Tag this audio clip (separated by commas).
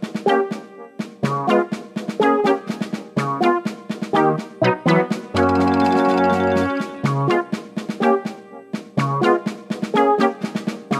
Music, Theme music